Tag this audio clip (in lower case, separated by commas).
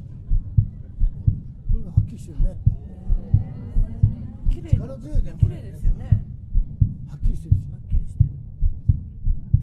heart sounds